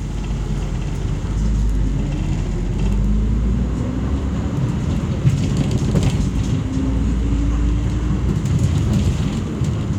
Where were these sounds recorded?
on a bus